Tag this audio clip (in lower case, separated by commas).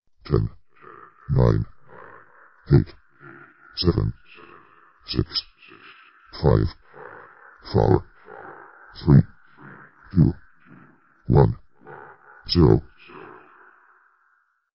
speech synthesizer, human voice, speech